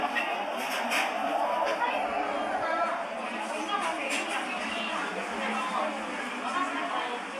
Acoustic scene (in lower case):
cafe